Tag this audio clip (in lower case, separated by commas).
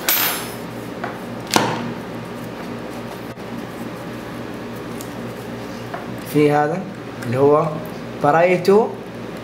ping, speech